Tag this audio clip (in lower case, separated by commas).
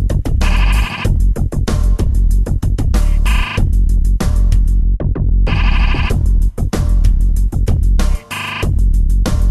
techno, music, electronic music